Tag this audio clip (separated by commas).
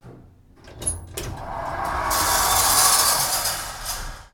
Sliding door, Domestic sounds, Door